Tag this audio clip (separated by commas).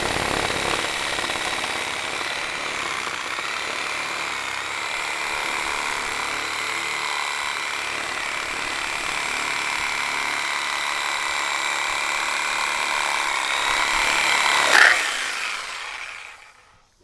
Tools, Sawing